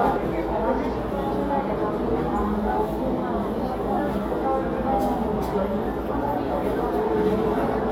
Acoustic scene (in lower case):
crowded indoor space